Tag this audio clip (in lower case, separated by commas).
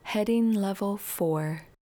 human voice, female speech, speech